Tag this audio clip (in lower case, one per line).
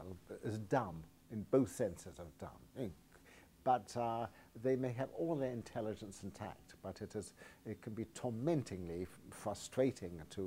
speech